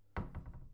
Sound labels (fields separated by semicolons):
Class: cupboard; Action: closing; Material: wooden